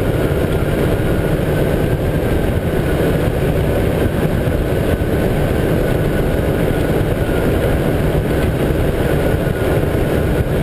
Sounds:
Vehicle, Engine

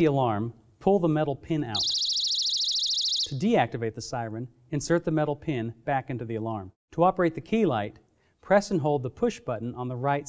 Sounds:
inside a small room, Speech

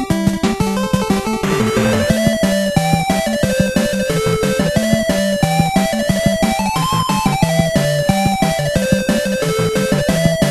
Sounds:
Music

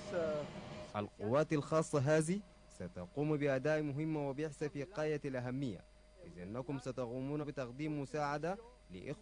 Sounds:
Speech

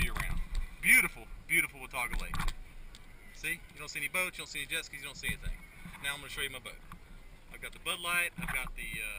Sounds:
Speech

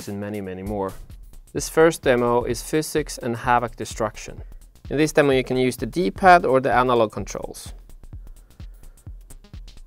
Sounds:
Music, Speech

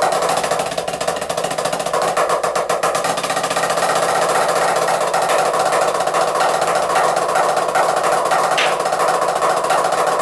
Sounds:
Drum, Music, Musical instrument

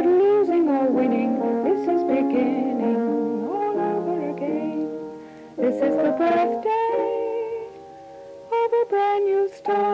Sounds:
Music

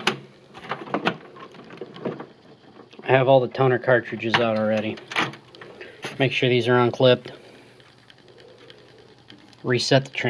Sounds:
Speech

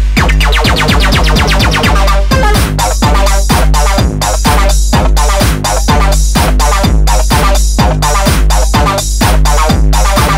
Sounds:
Music

